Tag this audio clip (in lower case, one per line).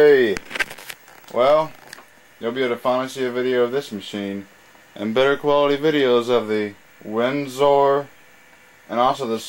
speech